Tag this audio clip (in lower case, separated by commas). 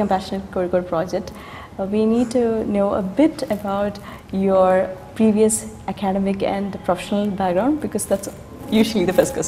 speech